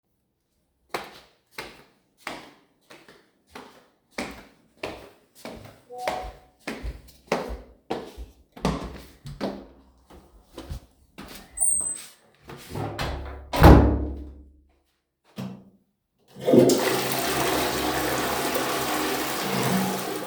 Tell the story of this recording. I walked towards the toilet and opened the door and closes the same then flushed the toilet